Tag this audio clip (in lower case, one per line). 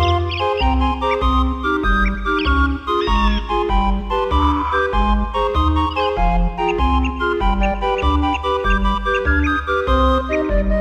music